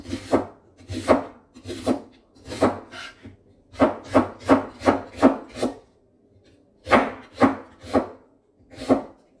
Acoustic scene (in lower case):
kitchen